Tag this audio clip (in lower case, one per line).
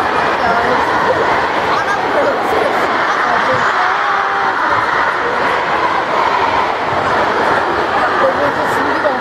speech